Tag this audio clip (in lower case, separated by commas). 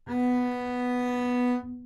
music, musical instrument, bowed string instrument